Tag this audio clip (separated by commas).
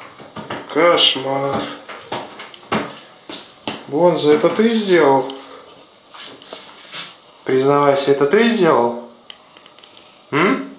Speech